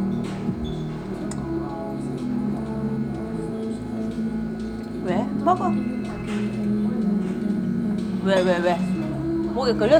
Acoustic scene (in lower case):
restaurant